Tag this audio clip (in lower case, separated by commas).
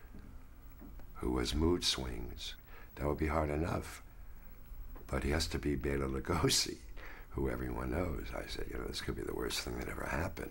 speech